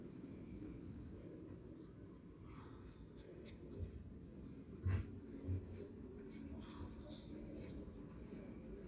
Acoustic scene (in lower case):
park